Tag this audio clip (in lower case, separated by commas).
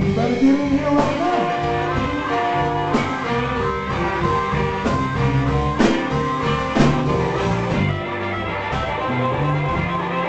blues, music